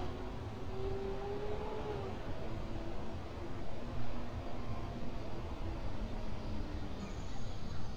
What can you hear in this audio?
engine of unclear size, unidentified human voice